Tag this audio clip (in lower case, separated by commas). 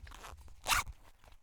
home sounds, zipper (clothing)